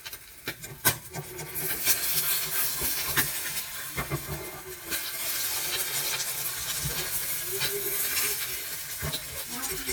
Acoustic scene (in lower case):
kitchen